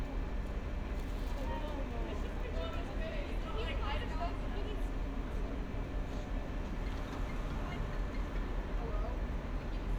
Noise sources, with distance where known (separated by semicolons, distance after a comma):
person or small group talking, near